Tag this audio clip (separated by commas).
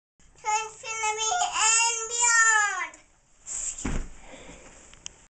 Speech